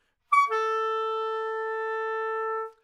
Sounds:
woodwind instrument, music, musical instrument

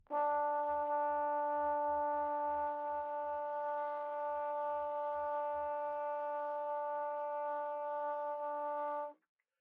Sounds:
music, musical instrument, brass instrument

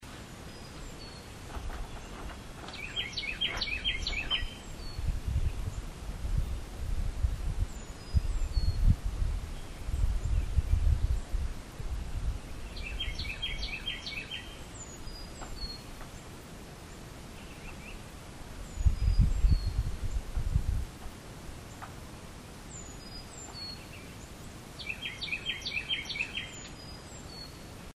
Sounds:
wild animals, bird, animal

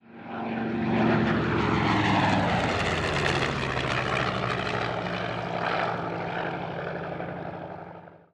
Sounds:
aircraft, vehicle, engine

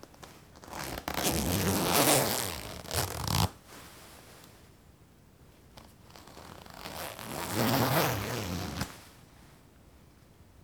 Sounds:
home sounds, zipper (clothing)

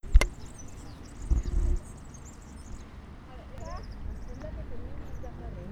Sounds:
bird, wild animals, animal, bird song

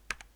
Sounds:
home sounds, typing

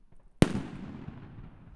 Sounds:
fireworks, explosion

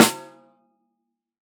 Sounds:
music, musical instrument, drum, snare drum, percussion

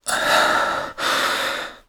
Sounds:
breathing, respiratory sounds

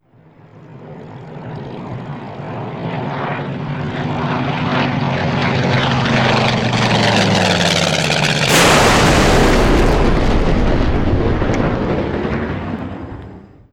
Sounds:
vehicle, aircraft

